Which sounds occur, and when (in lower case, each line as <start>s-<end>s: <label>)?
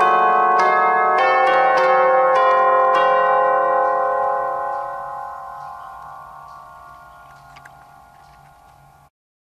0.0s-9.1s: mechanisms
0.0s-9.1s: music
3.8s-4.0s: tick
4.7s-4.9s: tick
5.6s-5.8s: tick
6.0s-6.1s: tick
6.5s-6.6s: tick
6.9s-7.0s: tick
7.3s-7.4s: tick
7.5s-7.7s: tick
8.1s-8.4s: tick
8.6s-8.8s: tick